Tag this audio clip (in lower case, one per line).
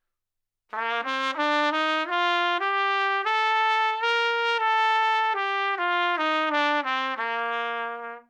brass instrument
musical instrument
music
trumpet